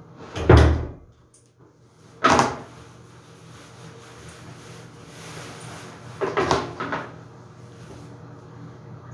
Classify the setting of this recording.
restroom